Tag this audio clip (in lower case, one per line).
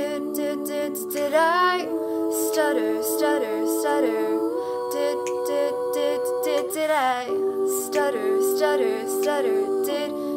choir